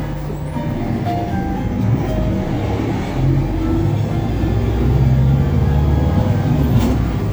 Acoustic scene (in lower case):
bus